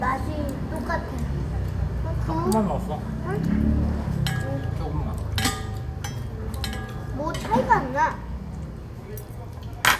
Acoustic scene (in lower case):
restaurant